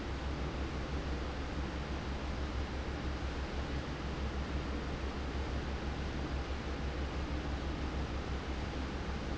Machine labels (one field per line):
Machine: fan